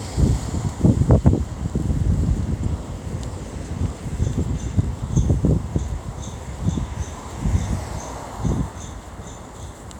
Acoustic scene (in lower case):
street